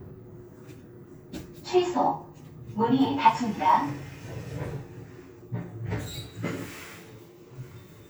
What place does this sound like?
elevator